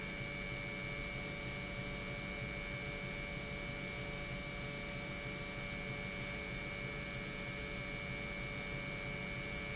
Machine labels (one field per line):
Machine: pump